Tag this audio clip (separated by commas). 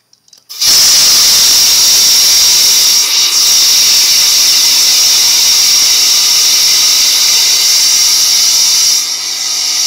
Steam, Hiss